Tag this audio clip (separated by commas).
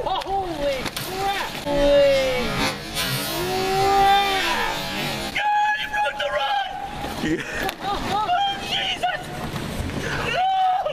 Speech